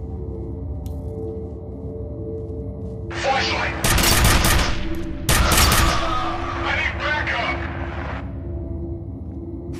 Gunshots with people speaking over a radio